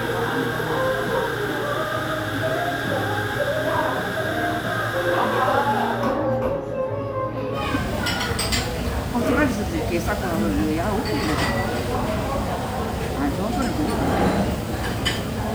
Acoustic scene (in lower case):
cafe